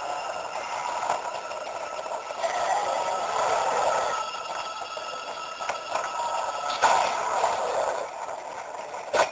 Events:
[0.00, 9.31] mechanisms
[0.00, 9.31] music
[0.00, 9.31] video game sound
[0.57, 1.20] generic impact sounds
[2.31, 4.34] generic impact sounds
[5.65, 5.70] tick
[5.86, 6.09] generic impact sounds
[6.60, 6.92] generic impact sounds
[6.67, 8.13] door
[9.11, 9.31] generic impact sounds

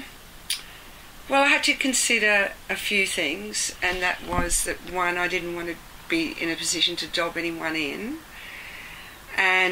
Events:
[0.00, 9.71] mechanisms
[0.45, 0.58] human sounds
[0.57, 0.83] breathing
[1.25, 2.52] female speech
[2.66, 5.76] female speech
[3.78, 4.93] generic impact sounds
[6.09, 8.21] female speech
[8.27, 9.15] breathing
[9.27, 9.71] female speech

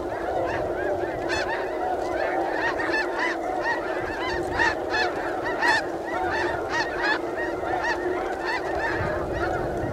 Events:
[0.00, 9.92] background noise
[0.00, 9.92] duck

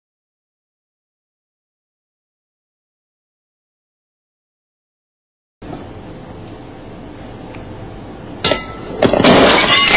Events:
[5.55, 9.95] mechanisms
[5.66, 5.72] tick
[6.41, 6.49] tick
[7.46, 7.52] tick
[8.40, 8.84] clink
[8.95, 9.95] explosion
[9.57, 9.95] shatter

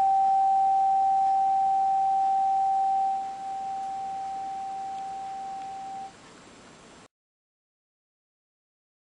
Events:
[0.00, 6.07] tuning fork
[0.00, 7.05] mechanisms

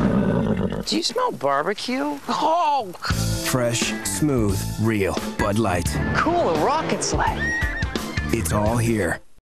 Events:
[0.00, 0.84] neigh
[0.00, 9.38] background noise
[0.85, 2.17] man speaking
[2.27, 2.94] man speaking
[3.00, 9.19] music
[3.00, 3.18] human sounds
[3.45, 5.18] man speaking
[5.37, 5.83] man speaking
[5.99, 7.32] man speaking
[7.33, 8.27] neigh
[8.25, 9.18] man speaking

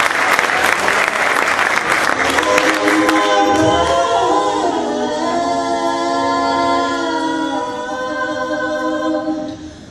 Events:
[0.00, 3.93] clapping
[0.25, 1.45] human sounds
[2.40, 9.90] music
[2.43, 9.45] female singing
[9.45, 9.90] breathing

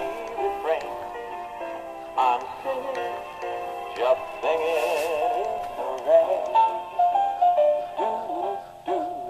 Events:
[0.00, 1.29] male singing
[0.00, 9.25] music
[0.23, 0.33] tick
[0.77, 0.88] tick
[2.11, 3.25] male singing
[2.37, 2.48] tick
[2.91, 3.02] tick
[3.35, 3.50] tick
[3.90, 4.02] tick
[3.96, 5.53] male singing
[4.38, 4.47] tick
[4.67, 5.19] surface contact
[5.39, 5.50] tick
[5.59, 5.72] generic impact sounds
[5.78, 7.38] male singing
[5.95, 6.04] tick
[6.43, 6.53] tick
[7.95, 9.25] male singing

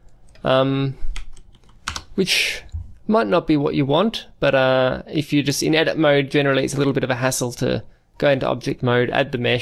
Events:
[0.01, 9.61] background noise
[0.20, 0.35] computer keyboard
[0.32, 0.98] male speech
[1.10, 1.35] computer keyboard
[1.50, 1.72] computer keyboard
[1.82, 2.00] computer keyboard
[1.85, 2.67] male speech
[2.64, 2.80] generic impact sounds
[2.91, 4.21] male speech
[4.34, 7.79] male speech
[8.14, 9.61] male speech

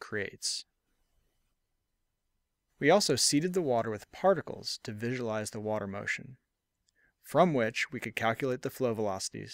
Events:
[0.00, 9.53] background noise
[0.01, 0.71] man speaking
[2.59, 4.63] man speaking
[4.83, 6.46] man speaking
[7.13, 9.46] man speaking

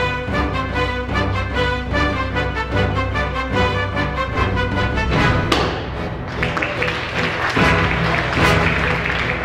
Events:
[0.00, 9.44] music
[5.46, 5.75] generic impact sounds
[6.24, 9.44] applause

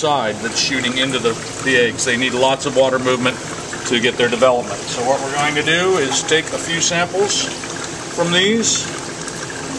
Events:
[0.00, 1.31] man speaking
[0.00, 9.75] pump (liquid)
[1.39, 1.50] generic impact sounds
[1.61, 3.30] man speaking
[3.79, 7.50] man speaking
[5.34, 5.42] generic impact sounds
[8.10, 8.86] man speaking

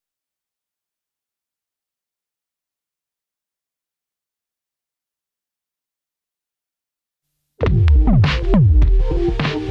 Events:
[7.22, 9.70] background noise
[7.55, 9.70] music

